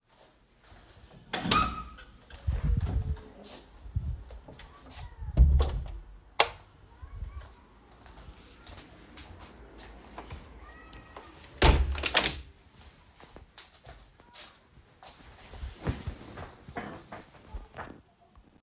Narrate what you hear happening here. I entered the bedroom and opened the door. I switched the light on and then closed the window. At the end of the scene, I sat down on a chair.